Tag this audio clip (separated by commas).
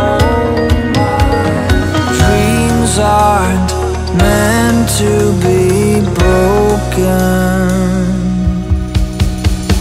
Music